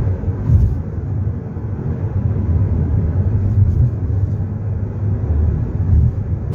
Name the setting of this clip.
car